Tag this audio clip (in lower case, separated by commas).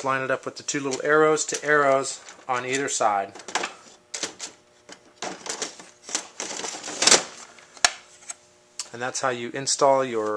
speech